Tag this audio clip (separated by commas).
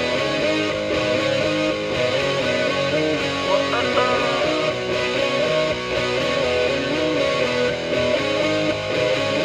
Happy music, Music